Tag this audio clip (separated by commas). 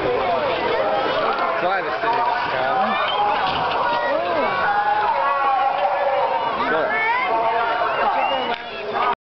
Speech